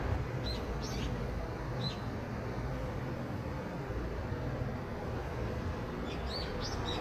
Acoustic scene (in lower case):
residential area